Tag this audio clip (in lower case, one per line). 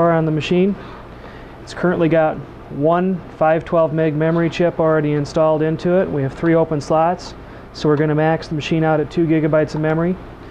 speech